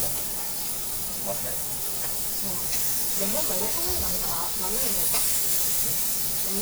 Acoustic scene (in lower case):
restaurant